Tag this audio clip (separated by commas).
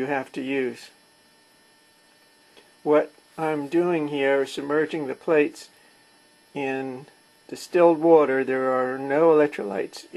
Speech